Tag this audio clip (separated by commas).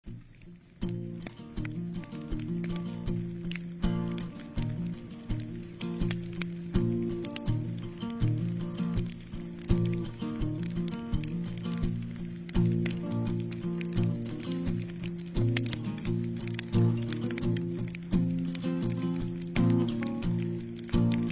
Fire